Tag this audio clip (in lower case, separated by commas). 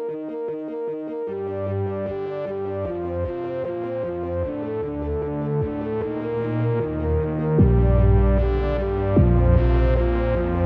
electronic music, music, techno